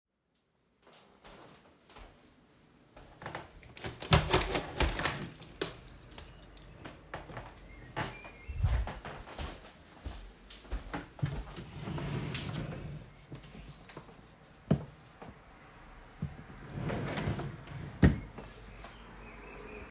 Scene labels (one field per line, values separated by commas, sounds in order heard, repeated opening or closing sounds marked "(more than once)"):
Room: bedroom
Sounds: window, footsteps, wardrobe or drawer (more than once)